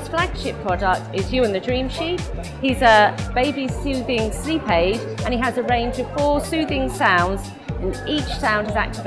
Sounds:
Speech, Music

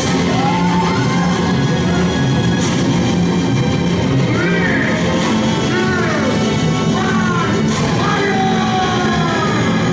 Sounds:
Speech, Music

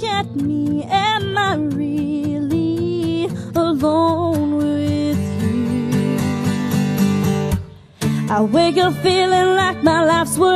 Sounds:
Soundtrack music, Music, Independent music, Happy music

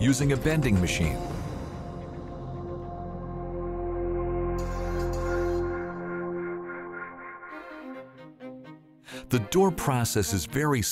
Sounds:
Speech, Music

